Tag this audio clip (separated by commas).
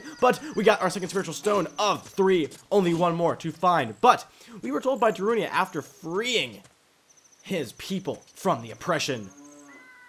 Animal, Speech